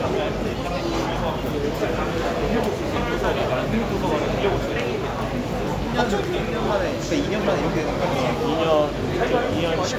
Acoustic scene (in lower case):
crowded indoor space